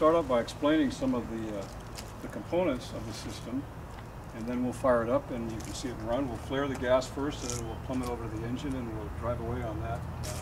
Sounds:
Speech

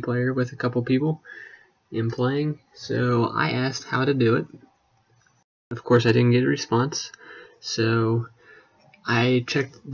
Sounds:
Speech

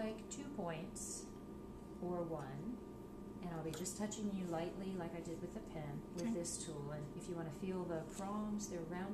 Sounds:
Speech

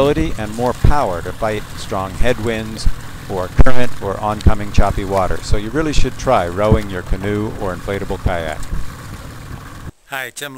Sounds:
Vehicle, Rowboat, Speech, Boat

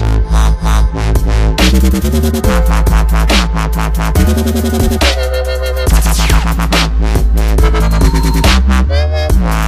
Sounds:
Electronic music, Music, Dubstep

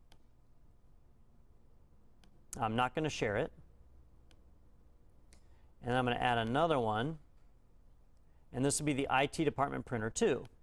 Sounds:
Speech

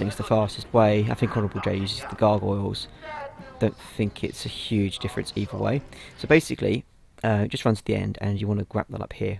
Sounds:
Speech

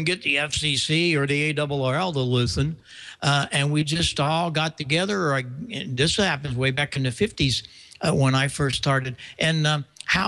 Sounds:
Speech

